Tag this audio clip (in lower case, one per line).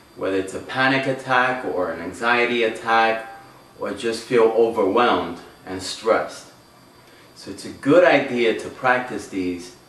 speech